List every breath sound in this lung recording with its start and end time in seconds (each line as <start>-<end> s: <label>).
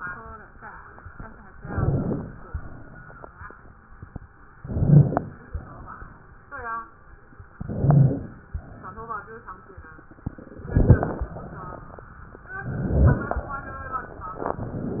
1.54-2.43 s: inhalation
1.69-2.13 s: rhonchi
2.52-3.30 s: exhalation
4.55-5.45 s: inhalation
4.72-5.16 s: rhonchi
5.50-6.28 s: exhalation
7.59-8.48 s: inhalation
7.76-8.20 s: rhonchi
8.56-9.45 s: exhalation
10.64-11.54 s: inhalation
10.70-11.14 s: crackles
12.66-13.55 s: inhalation
12.81-13.28 s: rhonchi